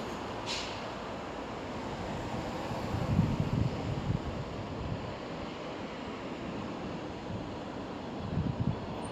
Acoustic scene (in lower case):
street